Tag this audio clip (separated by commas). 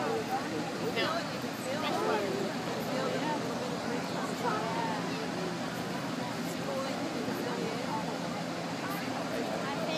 Stream